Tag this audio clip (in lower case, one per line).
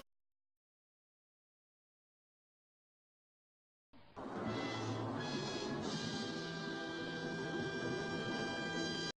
music